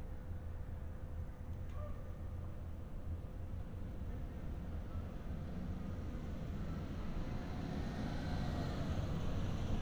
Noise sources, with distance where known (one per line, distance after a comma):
medium-sounding engine, near